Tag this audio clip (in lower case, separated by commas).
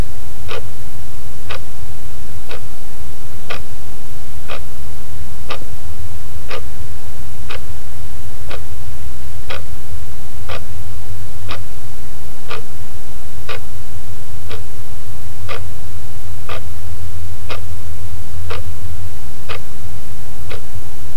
clock, mechanisms